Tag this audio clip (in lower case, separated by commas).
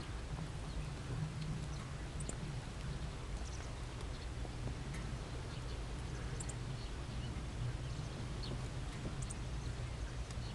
animal